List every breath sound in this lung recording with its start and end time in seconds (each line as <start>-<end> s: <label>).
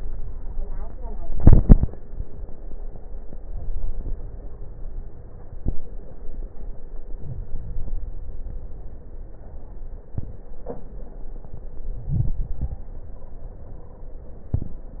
3.31-4.45 s: inhalation
3.31-4.45 s: crackles
7.20-8.49 s: inhalation
7.20-8.49 s: crackles
11.86-13.14 s: inhalation
11.86-13.14 s: crackles
13.12-14.16 s: stridor